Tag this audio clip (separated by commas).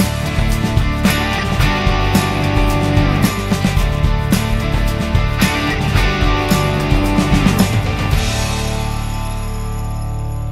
Music